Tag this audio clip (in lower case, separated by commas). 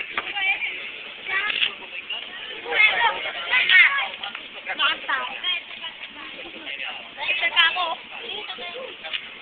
speech, outside, urban or man-made